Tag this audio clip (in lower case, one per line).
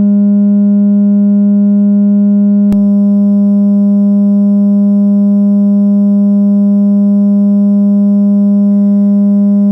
synthesizer